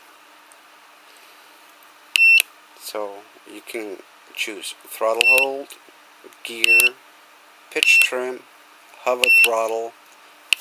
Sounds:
Speech, inside a small room, bleep

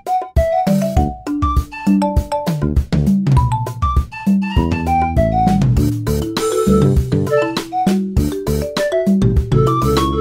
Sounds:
Music, Funny music

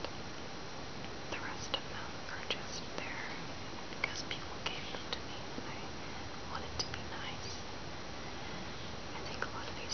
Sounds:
Speech, Whispering

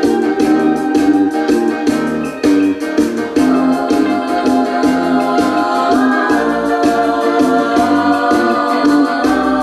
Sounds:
Music

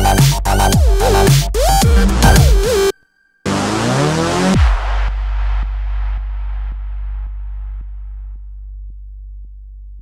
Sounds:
Music

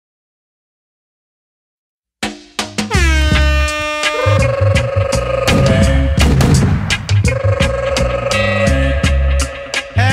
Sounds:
Sampler, Sound effect, Music

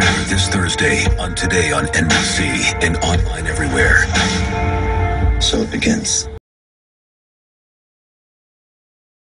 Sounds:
Speech, Music

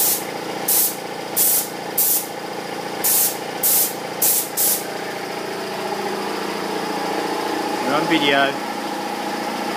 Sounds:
Spray, Speech

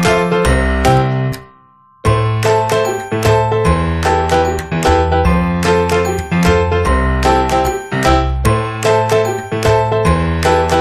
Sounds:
Music

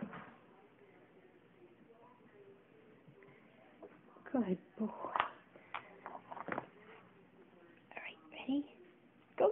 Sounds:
Speech

